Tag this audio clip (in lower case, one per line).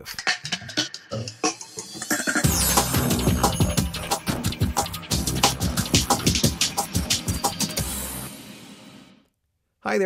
music
speech